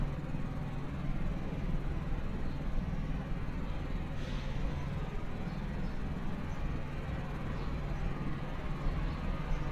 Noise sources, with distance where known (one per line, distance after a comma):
jackhammer, far